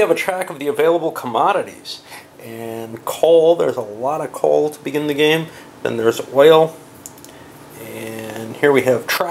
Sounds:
inside a small room, speech

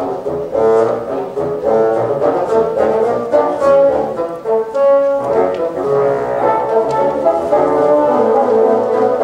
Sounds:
playing bassoon

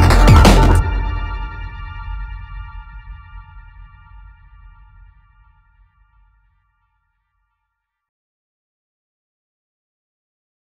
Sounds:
music, drum and bass, electronic music

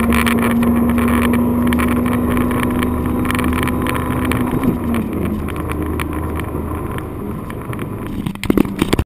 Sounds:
engine, vehicle, vroom, idling, medium engine (mid frequency)

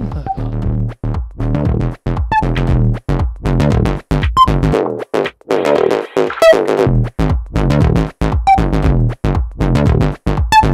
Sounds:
inside a large room or hall, music

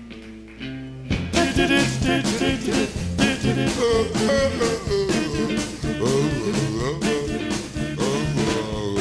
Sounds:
singing, music, swing music

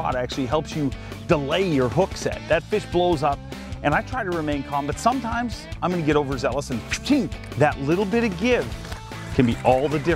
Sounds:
music, speech

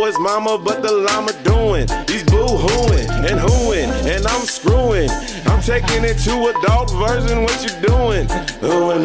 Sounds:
rapping

